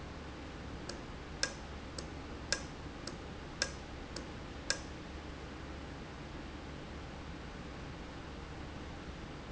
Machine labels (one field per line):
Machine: valve